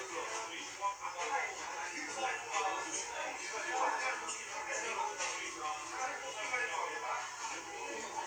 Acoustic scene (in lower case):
crowded indoor space